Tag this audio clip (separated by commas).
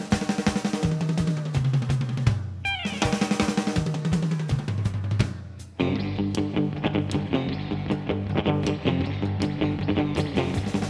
Musical instrument, Snare drum, Bass drum, Music, Drum kit, Drum, Plucked string instrument, Drum roll, Guitar